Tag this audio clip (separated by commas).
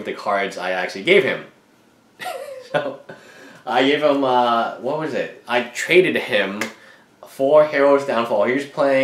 inside a small room, Speech